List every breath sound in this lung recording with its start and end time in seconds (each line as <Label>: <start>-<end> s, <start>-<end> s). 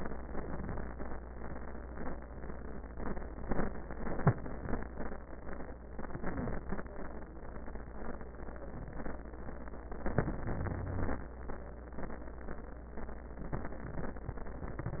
Inhalation: 6.00-6.91 s, 9.99-11.31 s
Wheeze: 10.53-11.21 s